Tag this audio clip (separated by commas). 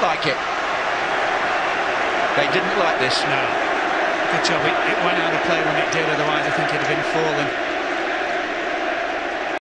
Speech